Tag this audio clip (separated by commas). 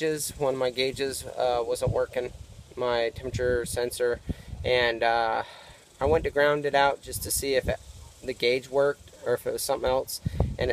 Speech